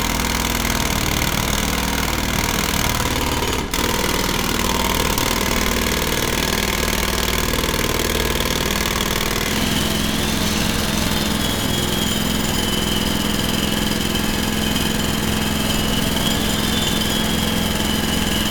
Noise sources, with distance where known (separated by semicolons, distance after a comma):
jackhammer